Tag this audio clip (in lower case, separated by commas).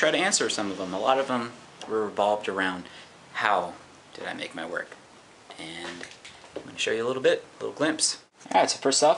speech